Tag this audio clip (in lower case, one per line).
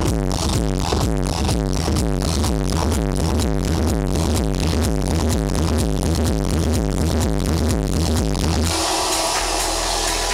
electronic music
outside, urban or man-made
music